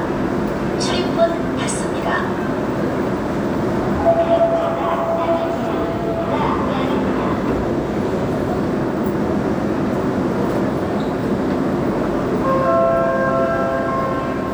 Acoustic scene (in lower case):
subway station